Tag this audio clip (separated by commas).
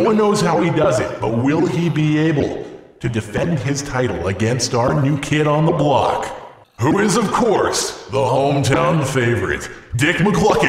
Speech